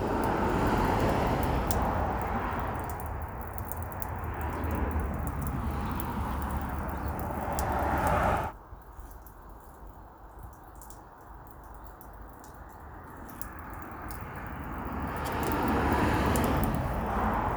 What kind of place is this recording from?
street